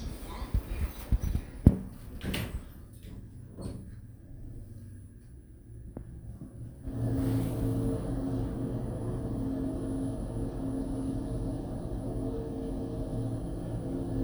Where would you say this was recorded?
in an elevator